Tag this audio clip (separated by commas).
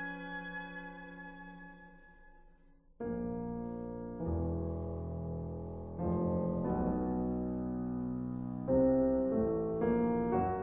Music